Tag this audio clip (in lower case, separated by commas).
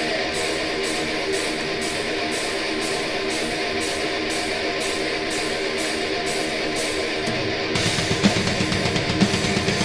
music